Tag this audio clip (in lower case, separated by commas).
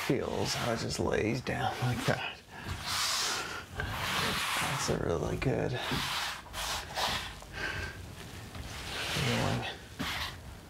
speech